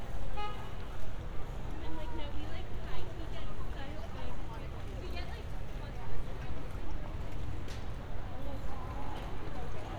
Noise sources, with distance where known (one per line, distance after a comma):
car horn
person or small group talking, near